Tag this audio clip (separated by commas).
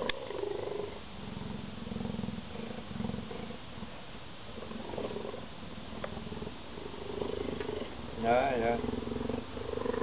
cheetah chirrup